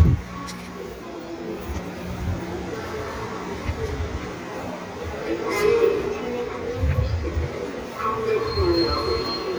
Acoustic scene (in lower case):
subway station